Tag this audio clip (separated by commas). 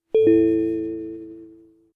Telephone, Alarm